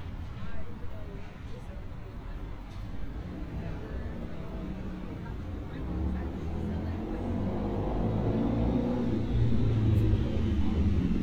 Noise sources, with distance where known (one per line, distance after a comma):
engine of unclear size, near
person or small group talking, far